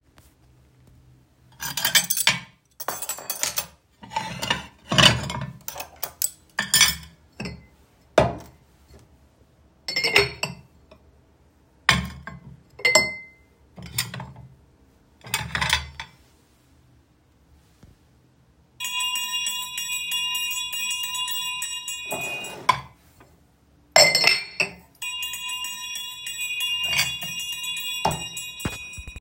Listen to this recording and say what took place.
I collected dishes from the table and rang a small bell. Both sounds are clearly audible and easy to distinguish.